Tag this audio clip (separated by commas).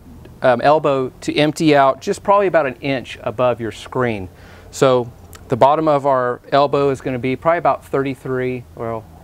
Speech